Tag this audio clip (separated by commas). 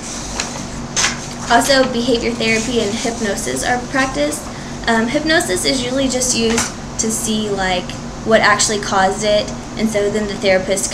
Speech